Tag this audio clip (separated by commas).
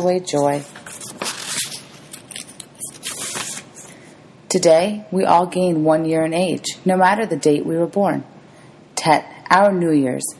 Speech